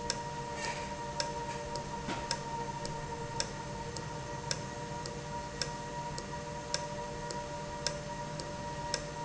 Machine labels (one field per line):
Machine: valve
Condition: normal